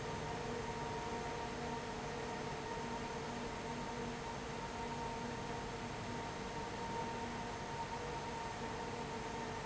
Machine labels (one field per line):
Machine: fan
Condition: abnormal